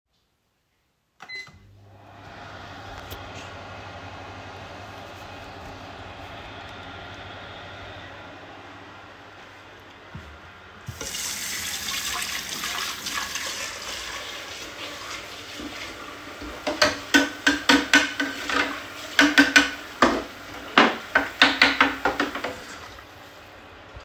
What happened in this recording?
I turned on the microwave. While it was running, I turned on the sink tap and washed some dishes.